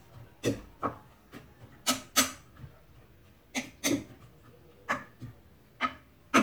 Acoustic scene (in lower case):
kitchen